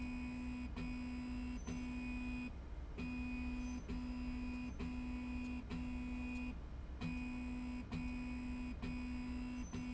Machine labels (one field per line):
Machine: slide rail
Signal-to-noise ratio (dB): 6 dB